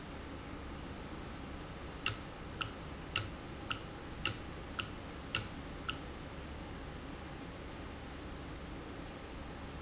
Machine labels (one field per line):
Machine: valve